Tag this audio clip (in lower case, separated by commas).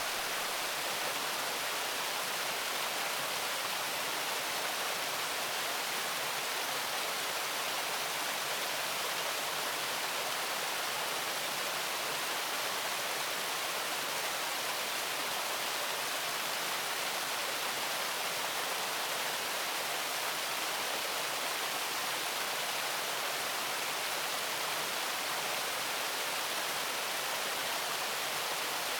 water